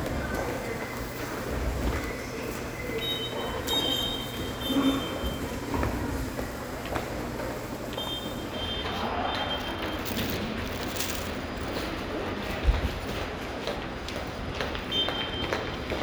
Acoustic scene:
subway station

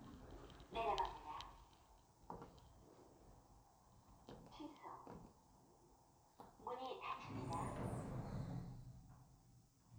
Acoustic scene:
elevator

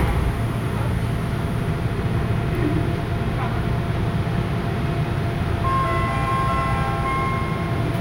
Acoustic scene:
subway train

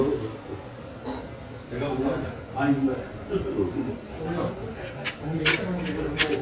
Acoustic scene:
restaurant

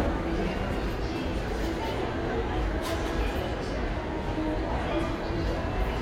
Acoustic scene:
subway station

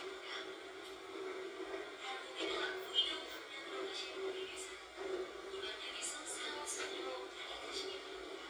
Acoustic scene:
subway train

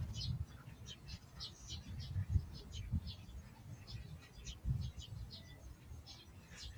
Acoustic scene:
park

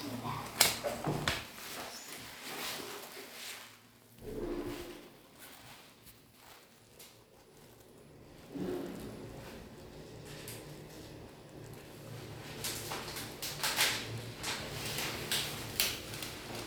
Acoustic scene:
elevator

